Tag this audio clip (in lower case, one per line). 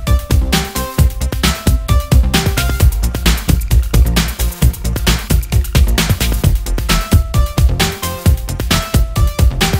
music